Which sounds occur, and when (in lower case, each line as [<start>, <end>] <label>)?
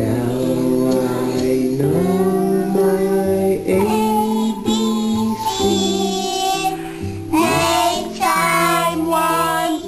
[0.00, 5.32] male singing
[0.00, 9.85] mechanisms
[0.00, 9.85] music
[0.84, 0.98] generic impact sounds
[1.33, 1.46] generic impact sounds
[1.78, 3.18] child singing
[3.77, 6.76] child singing
[5.56, 6.18] male singing
[6.76, 7.24] breathing
[7.30, 9.84] child singing
[7.34, 7.71] male singing
[8.15, 9.81] male singing
[8.25, 9.85] female singing